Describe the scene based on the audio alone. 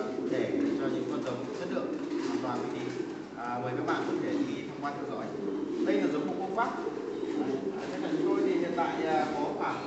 A man is speaking in the distance